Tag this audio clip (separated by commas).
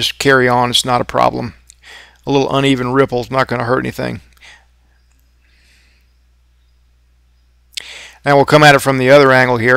arc welding